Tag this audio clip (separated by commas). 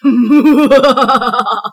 Human voice, Laughter